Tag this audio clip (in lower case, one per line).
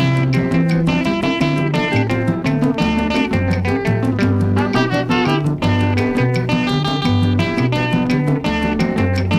music